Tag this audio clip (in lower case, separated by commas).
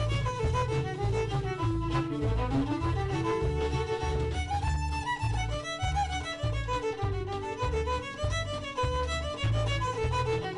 fiddle, musical instrument, music